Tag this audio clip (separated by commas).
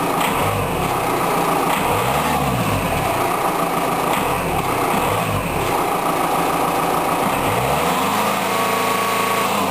revving, Heavy engine (low frequency), Vehicle, Car